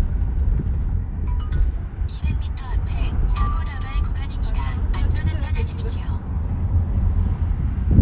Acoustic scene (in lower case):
car